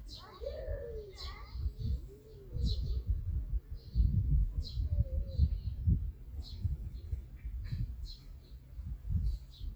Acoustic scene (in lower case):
park